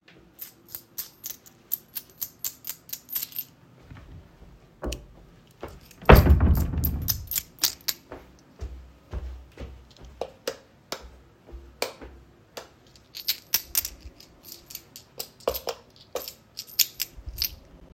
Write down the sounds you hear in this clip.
keys, light switch, wardrobe or drawer, footsteps